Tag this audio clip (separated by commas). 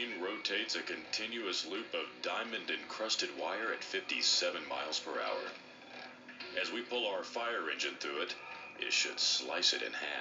Speech